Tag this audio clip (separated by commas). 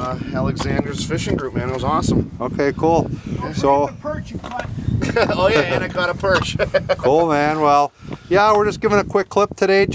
Speech